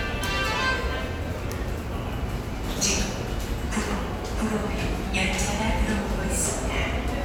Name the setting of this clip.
subway station